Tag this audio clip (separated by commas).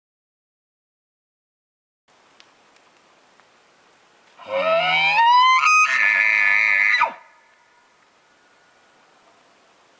elk bugling